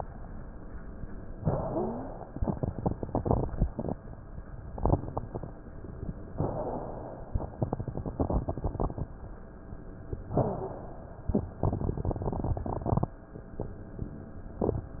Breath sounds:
1.35-2.27 s: inhalation
1.55-2.15 s: wheeze
6.38-7.53 s: inhalation
10.34-11.38 s: inhalation

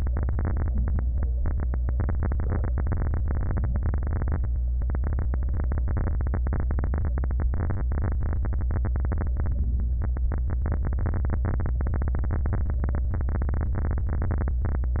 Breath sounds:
4.36-4.85 s: inhalation
9.53-10.02 s: inhalation

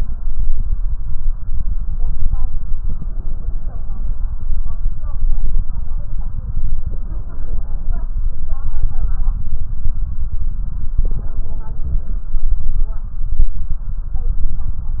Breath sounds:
2.77-4.28 s: inhalation
6.78-8.10 s: inhalation
10.99-12.32 s: inhalation

